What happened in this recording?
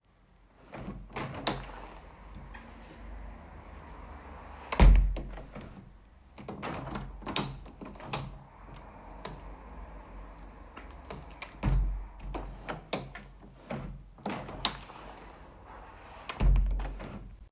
I placed the phone on a table and repeatedly opened and closed the window outside noise was audible in the background.